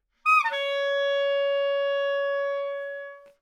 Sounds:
music, wind instrument, musical instrument

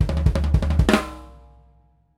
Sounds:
percussion, music, drum kit, musical instrument

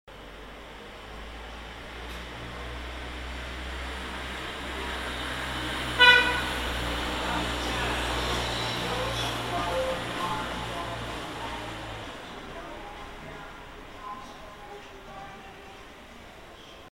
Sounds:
motor vehicle (road), vehicle, vehicle horn, car, alarm

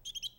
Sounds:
animal, bird, bird vocalization, chirp, wild animals

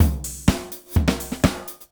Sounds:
musical instrument, drum kit, music, percussion

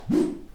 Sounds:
whoosh

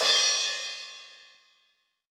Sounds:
percussion, musical instrument, music, crash cymbal, cymbal

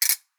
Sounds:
music, ratchet, percussion, musical instrument, mechanisms

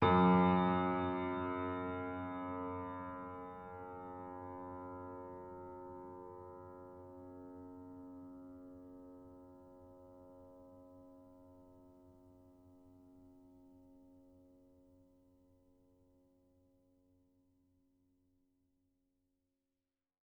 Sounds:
musical instrument, piano, keyboard (musical), music

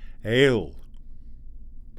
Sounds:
man speaking, speech, human voice

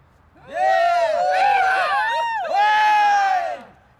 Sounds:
human group actions, cheering

